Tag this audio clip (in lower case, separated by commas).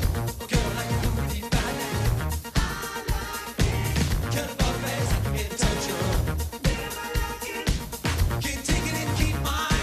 music, rock and roll